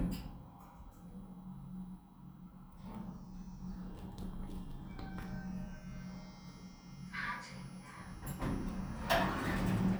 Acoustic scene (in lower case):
elevator